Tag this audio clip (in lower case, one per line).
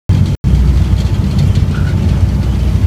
vehicle
boat